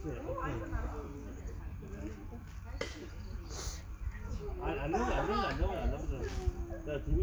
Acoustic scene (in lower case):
park